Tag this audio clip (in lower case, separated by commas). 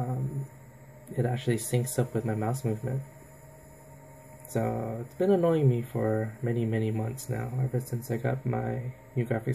speech